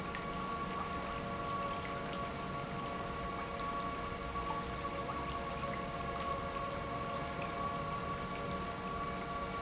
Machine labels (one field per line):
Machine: pump